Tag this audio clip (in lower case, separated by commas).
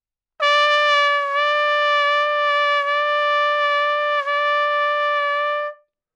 musical instrument, brass instrument, music, trumpet